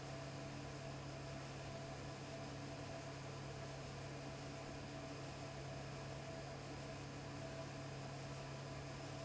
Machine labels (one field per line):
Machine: fan